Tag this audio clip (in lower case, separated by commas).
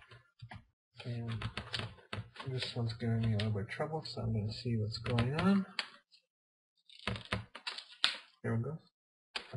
speech, inside a small room